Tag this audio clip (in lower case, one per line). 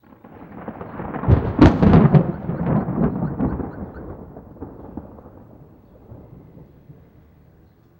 thunderstorm
thunder